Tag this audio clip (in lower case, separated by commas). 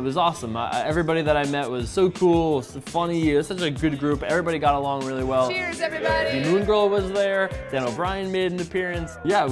speech, music